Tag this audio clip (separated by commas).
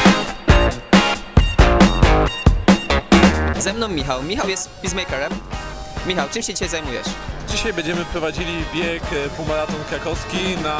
outside, urban or man-made, Music, Speech